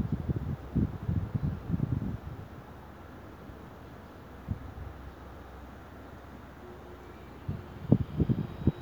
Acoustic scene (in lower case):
street